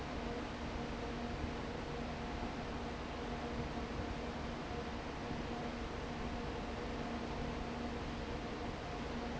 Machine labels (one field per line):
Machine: fan